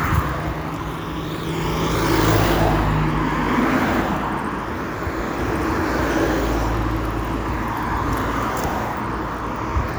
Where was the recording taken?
on a street